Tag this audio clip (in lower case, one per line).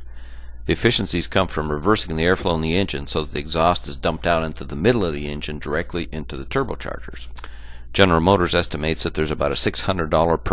speech